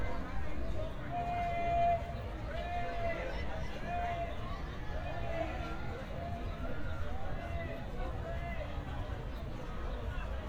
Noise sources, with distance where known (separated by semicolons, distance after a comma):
person or small group shouting